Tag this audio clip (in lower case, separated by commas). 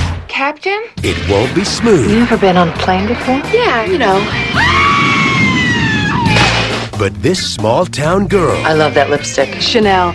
music, speech